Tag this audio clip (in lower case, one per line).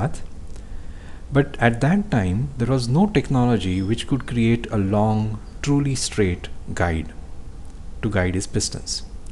speech